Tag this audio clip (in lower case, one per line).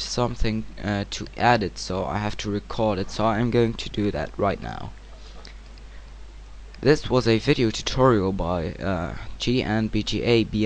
speech